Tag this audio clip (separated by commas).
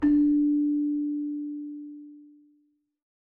Keyboard (musical), Music, Musical instrument